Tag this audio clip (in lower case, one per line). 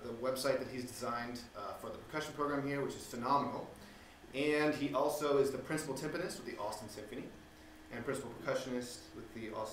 speech